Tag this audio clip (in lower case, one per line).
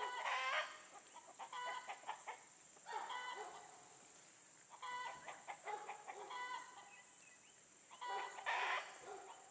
animal
livestock